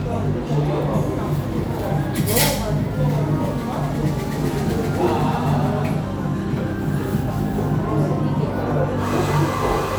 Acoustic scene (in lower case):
cafe